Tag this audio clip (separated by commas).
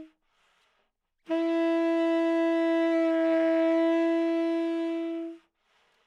Wind instrument, Music, Musical instrument